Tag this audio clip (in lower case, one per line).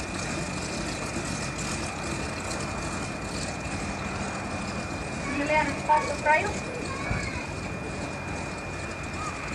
speech